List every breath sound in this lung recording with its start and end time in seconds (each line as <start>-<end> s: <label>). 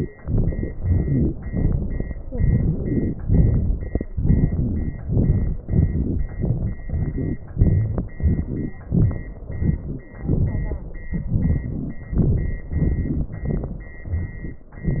0.21-0.81 s: crackles
0.23-0.83 s: exhalation
0.82-1.43 s: crackles
0.83-1.45 s: inhalation
1.44-2.20 s: crackles
1.45-2.21 s: exhalation
2.21-3.20 s: crackles
2.25-3.19 s: inhalation
3.21-4.13 s: crackles
3.21-4.16 s: exhalation
4.15-4.98 s: crackles
4.17-5.07 s: inhalation
5.00-5.61 s: crackles
5.01-5.62 s: exhalation
5.63-6.34 s: crackles
5.64-6.38 s: inhalation
6.35-6.78 s: exhalation
6.36-6.77 s: crackles
6.87-7.51 s: crackles
6.88-7.52 s: inhalation
7.51-8.20 s: exhalation
7.52-8.18 s: crackles
8.18-8.83 s: crackles
8.18-8.87 s: inhalation
8.85-9.51 s: exhalation
8.87-9.50 s: crackles
9.50-10.15 s: crackles
9.50-10.16 s: inhalation
10.15-10.87 s: crackles
10.17-10.91 s: exhalation
10.88-12.04 s: crackles
10.89-12.04 s: inhalation
12.07-12.65 s: exhalation
12.63-13.41 s: crackles
12.67-13.41 s: inhalation
13.42-14.00 s: crackles
13.45-14.04 s: exhalation
14.02-14.65 s: inhalation